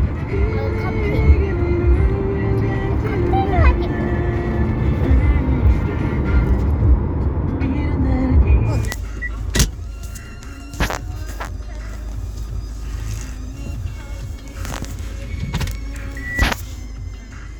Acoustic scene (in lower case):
car